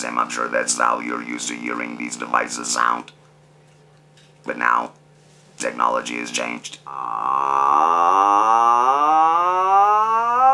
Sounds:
Speech, man speaking

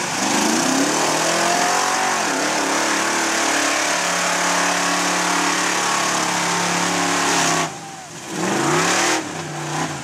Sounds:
Truck, Vehicle, Car

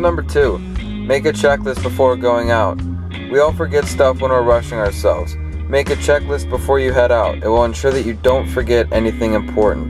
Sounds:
Music, Speech

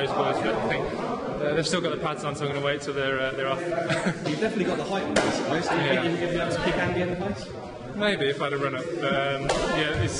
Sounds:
Speech

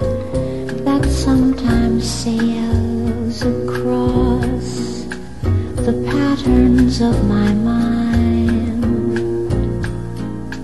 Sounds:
Music

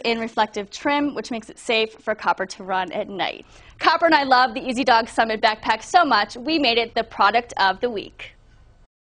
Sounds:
Speech

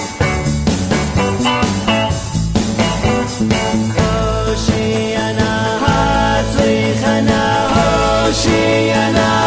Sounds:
Music

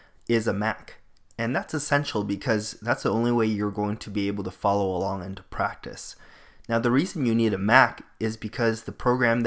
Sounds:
Speech

